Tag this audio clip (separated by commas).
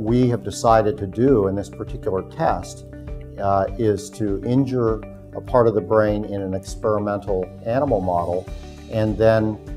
Speech, Music